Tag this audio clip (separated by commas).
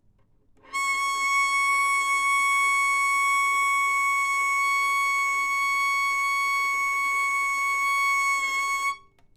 Music, Bowed string instrument, Musical instrument